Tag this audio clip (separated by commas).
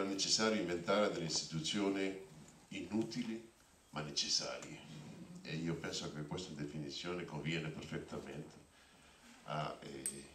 Speech